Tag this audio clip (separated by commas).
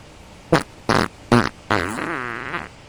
Fart